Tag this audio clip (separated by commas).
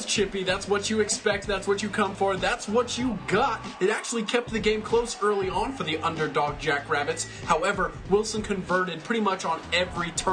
Music, Speech